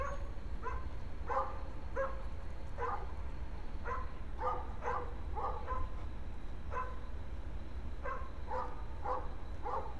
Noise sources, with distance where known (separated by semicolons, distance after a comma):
dog barking or whining